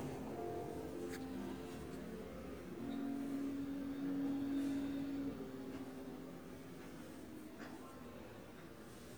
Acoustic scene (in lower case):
crowded indoor space